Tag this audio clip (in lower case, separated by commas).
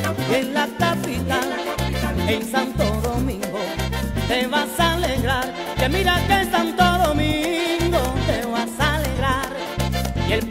dance music, music